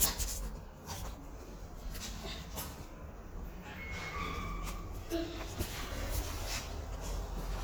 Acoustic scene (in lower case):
elevator